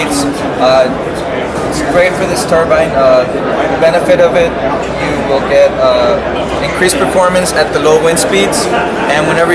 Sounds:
speech

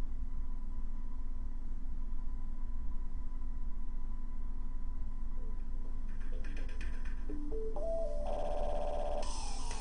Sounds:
music

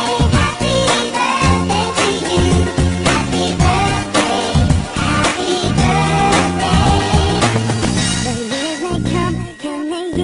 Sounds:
music, pop music

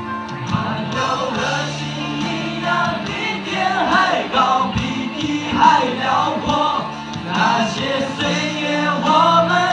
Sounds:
male singing, music, singing

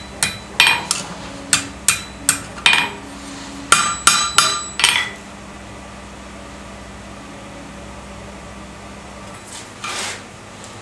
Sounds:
forging swords

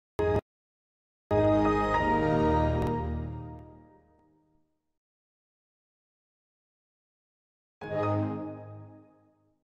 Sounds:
music

